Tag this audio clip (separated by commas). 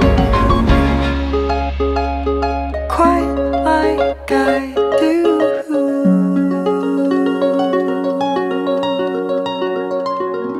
Music